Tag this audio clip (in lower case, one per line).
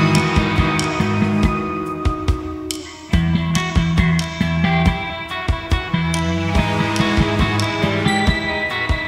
music
sound effect
television